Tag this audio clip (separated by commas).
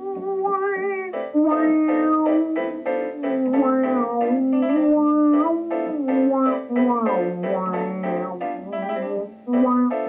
playing theremin